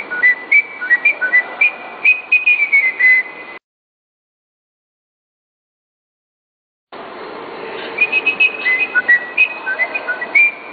Something is whistling